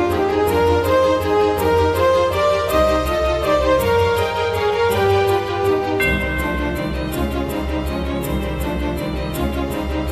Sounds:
music

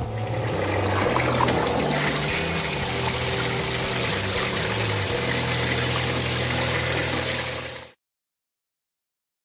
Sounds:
pumping water

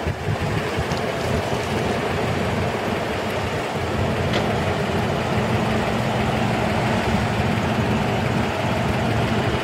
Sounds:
vehicle

